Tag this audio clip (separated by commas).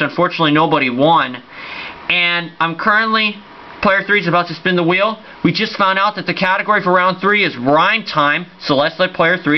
Speech